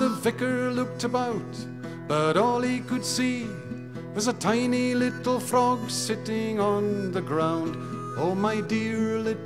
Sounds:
Music

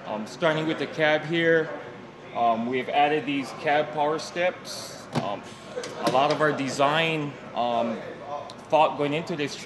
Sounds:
Speech

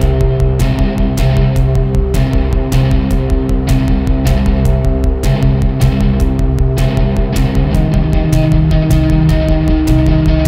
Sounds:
Music, Exciting music

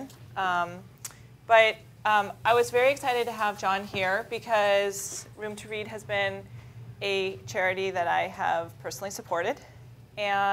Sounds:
Speech

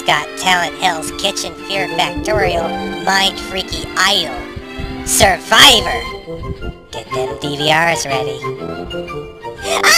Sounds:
Speech, Music

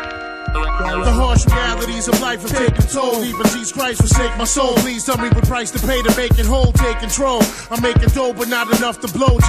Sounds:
Hip hop music, Music

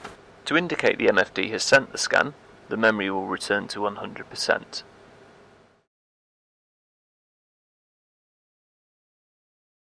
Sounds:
Speech

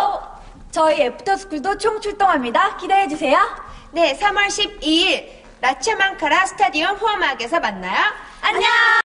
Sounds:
Speech

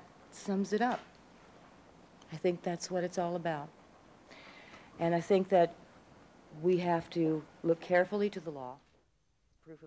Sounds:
Speech, Female speech

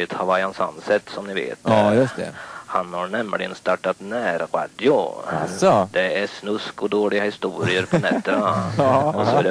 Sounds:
Speech, Radio

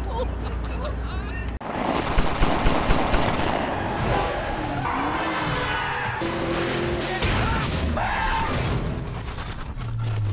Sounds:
Skidding, Car passing by, Car, Vehicle, Music

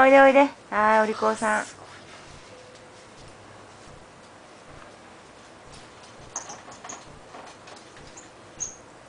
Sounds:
Speech

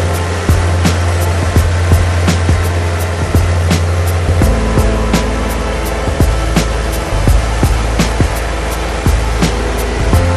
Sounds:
Music, Lawn mower, Vehicle

